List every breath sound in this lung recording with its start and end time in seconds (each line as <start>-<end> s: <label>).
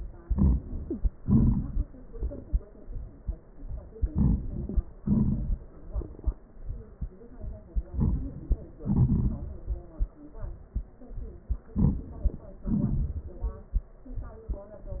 0.20-0.56 s: inhalation
1.22-1.84 s: exhalation
3.95-4.84 s: inhalation
5.00-5.61 s: exhalation
7.97-8.26 s: inhalation
8.87-9.45 s: exhalation
11.76-12.04 s: inhalation
12.67-13.38 s: exhalation